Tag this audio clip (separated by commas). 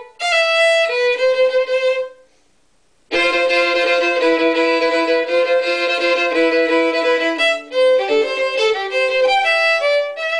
Musical instrument, Music, Violin